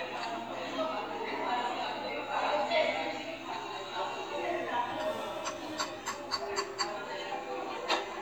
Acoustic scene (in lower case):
cafe